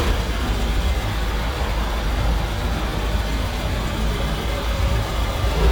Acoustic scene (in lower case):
street